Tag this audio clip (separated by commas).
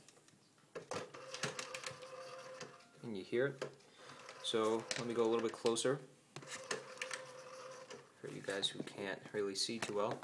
Speech